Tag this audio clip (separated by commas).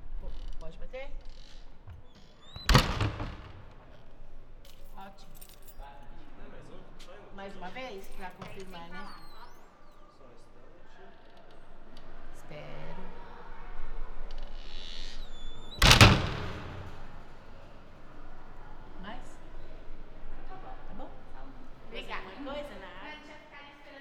Door, Slam, Domestic sounds